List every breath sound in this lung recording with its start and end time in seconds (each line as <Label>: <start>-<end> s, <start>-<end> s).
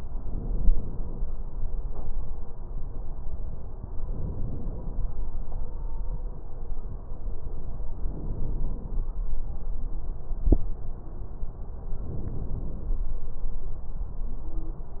Inhalation: 0.14-1.22 s, 4.09-5.16 s, 8.06-9.14 s, 12.02-13.10 s